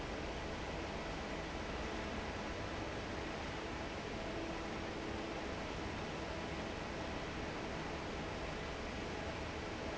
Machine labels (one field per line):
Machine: fan